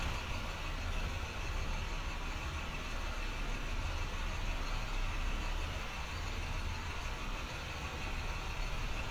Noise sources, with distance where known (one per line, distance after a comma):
large-sounding engine, near